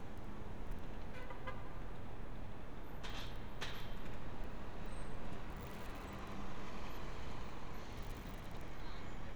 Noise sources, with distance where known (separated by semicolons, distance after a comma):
car horn, far